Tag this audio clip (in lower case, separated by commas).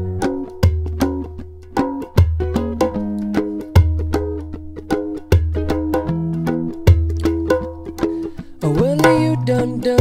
playing djembe